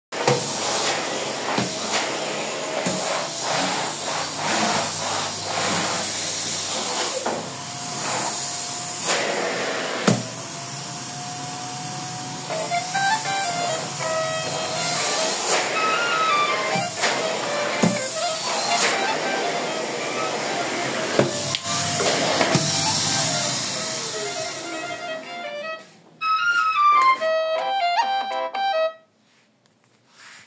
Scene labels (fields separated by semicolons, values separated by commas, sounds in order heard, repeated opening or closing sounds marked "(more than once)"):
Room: kitchen, hallway; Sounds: vacuum cleaner